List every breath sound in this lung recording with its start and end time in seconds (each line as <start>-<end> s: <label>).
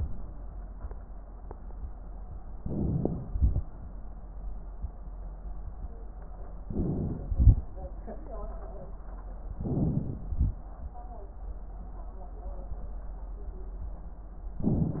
2.57-3.27 s: crackles
2.57-3.29 s: inhalation
3.31-3.63 s: exhalation
6.62-7.34 s: inhalation
6.64-7.34 s: crackles
7.33-7.66 s: exhalation
9.53-10.25 s: inhalation
9.54-10.24 s: crackles
10.25-10.57 s: exhalation
14.63-15.00 s: inhalation
14.63-15.00 s: crackles